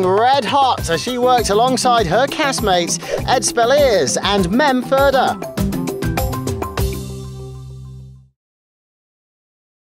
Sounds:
Speech, Music

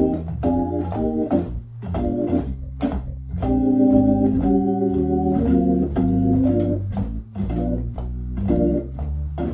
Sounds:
playing hammond organ

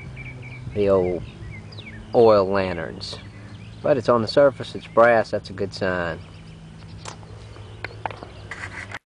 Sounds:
Speech

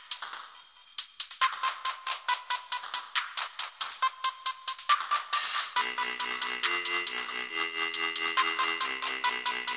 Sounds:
Music, Dubstep, Electronic music

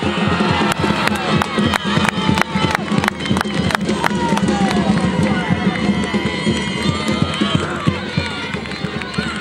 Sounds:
Music, Speech

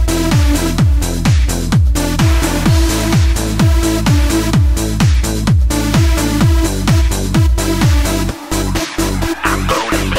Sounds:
Music, Electronic dance music

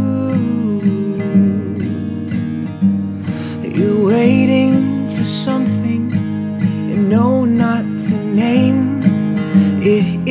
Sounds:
Music

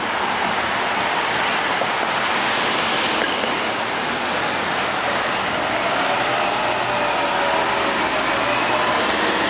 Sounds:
Bus, Vehicle

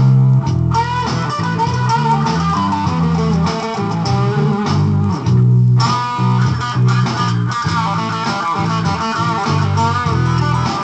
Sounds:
Steel guitar, Guitar, Bass guitar, Musical instrument, Music

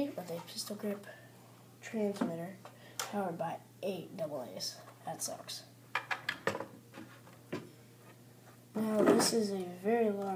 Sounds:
Speech

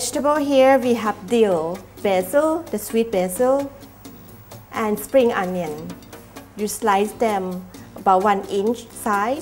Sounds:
Speech, Music

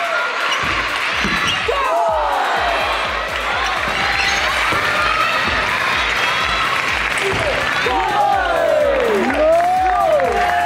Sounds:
playing table tennis

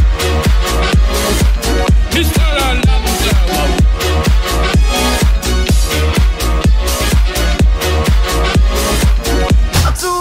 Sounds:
Music, Soundtrack music

